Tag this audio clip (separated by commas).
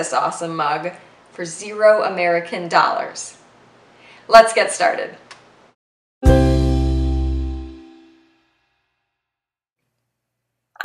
Music, Speech